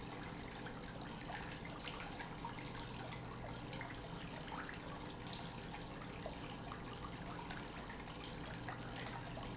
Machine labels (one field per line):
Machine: pump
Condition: normal